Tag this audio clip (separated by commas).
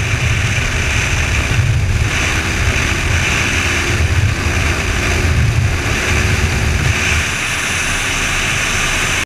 Vehicle